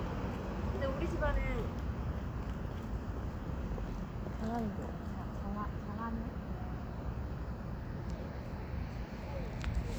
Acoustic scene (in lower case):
residential area